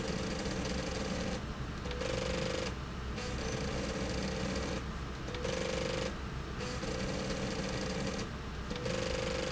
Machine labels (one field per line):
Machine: slide rail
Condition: abnormal